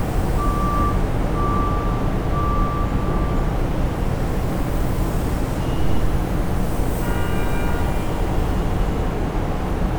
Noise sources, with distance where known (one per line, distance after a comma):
car horn, near
reverse beeper, near